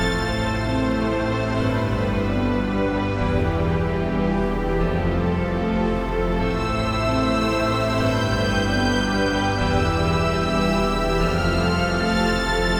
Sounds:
Music, Musical instrument

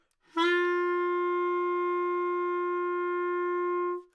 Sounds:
woodwind instrument, Musical instrument, Music

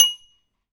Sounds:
Glass, dishes, pots and pans, home sounds

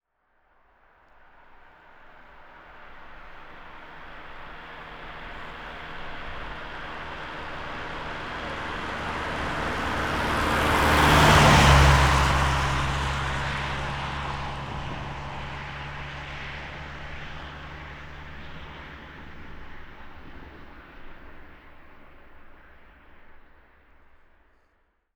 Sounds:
Truck, Motor vehicle (road), Car passing by, Car, Vehicle

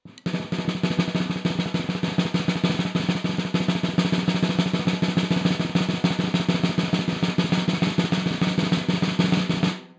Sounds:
Percussion, Musical instrument, Drum, Music, Snare drum

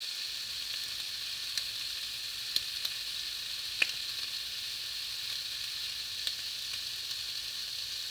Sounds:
Frying (food), home sounds

